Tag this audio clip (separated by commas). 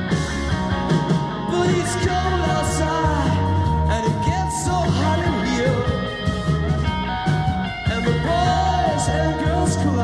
Music, Singing